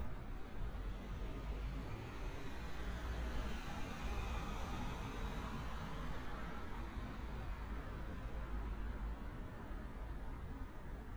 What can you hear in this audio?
engine of unclear size